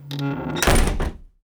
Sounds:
slam, door, domestic sounds

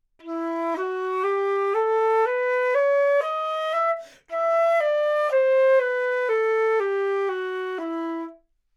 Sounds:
musical instrument, woodwind instrument, music

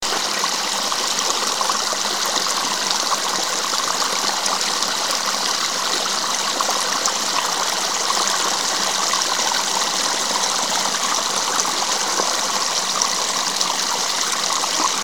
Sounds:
water, stream

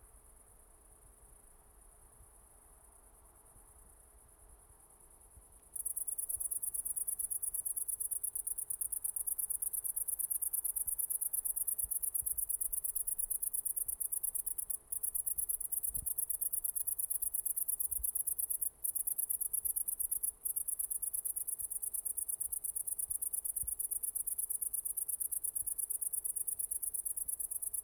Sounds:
insect, wild animals, cricket, animal

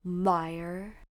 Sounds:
woman speaking, speech, human voice

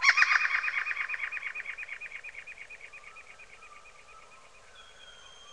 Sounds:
bird, bird vocalization, animal, wild animals

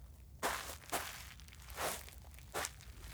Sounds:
walk

